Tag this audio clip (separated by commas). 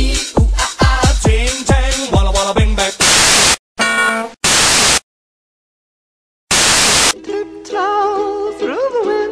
Music